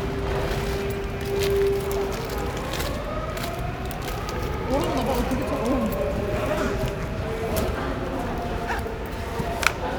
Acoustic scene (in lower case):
subway station